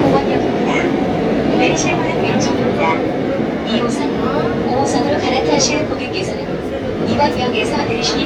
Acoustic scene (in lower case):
subway train